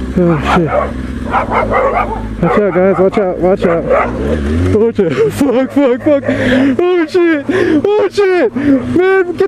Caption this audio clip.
A man talks, and a dog barks while a vehicle passes by